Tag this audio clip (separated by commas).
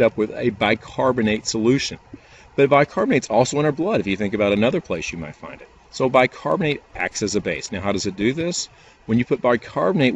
Speech